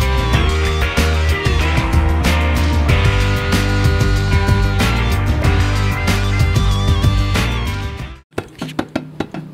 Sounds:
Drum

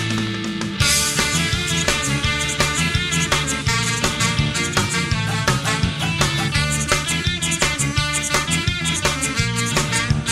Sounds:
Progressive rock, Music

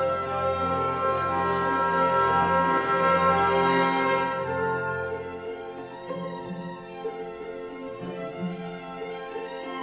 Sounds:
fiddle, Bowed string instrument

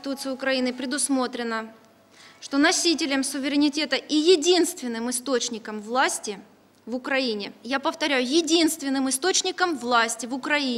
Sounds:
Music, monologue, Female speech, Speech

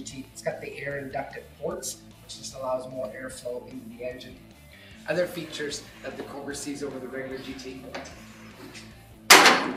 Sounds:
Speech

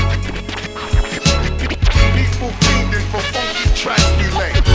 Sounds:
Music

